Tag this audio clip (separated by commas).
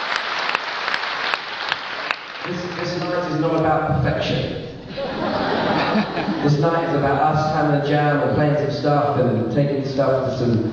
Speech